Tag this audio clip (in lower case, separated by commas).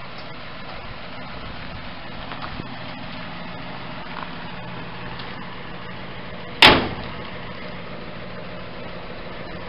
vehicle, truck